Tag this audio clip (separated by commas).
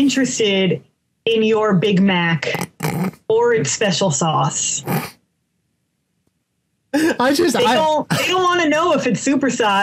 Speech, inside a small room